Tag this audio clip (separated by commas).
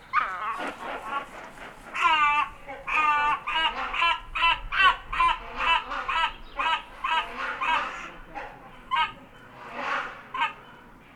Bird, bird song, Wild animals, Animal